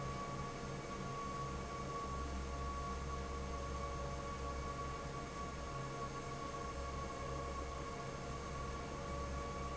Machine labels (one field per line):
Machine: fan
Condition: normal